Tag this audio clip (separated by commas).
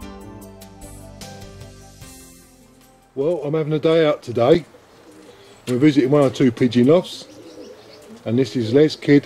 Coo, Speech, Music, Animal, Bird